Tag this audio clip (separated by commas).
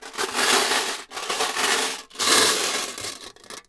Glass